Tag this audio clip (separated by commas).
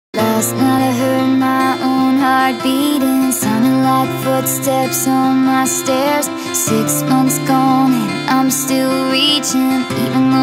Music